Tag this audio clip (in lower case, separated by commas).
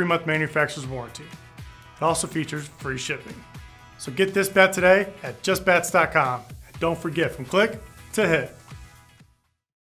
speech, music